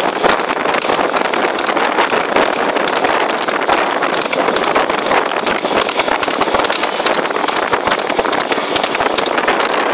Clip clopping sound on a hard surface